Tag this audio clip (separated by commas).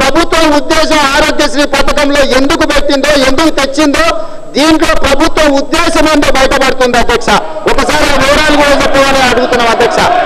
Narration, man speaking, Speech